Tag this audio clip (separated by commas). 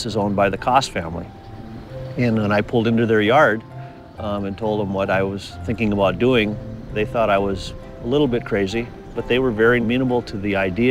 Music, Speech